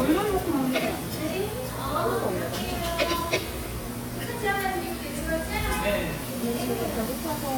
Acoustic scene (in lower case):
restaurant